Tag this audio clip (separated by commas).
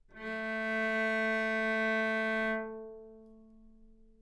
Bowed string instrument, Musical instrument, Music